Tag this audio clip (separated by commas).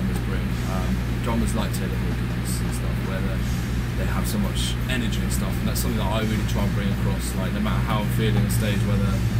Speech